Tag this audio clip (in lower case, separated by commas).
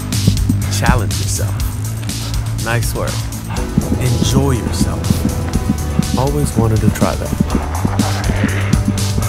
music, speech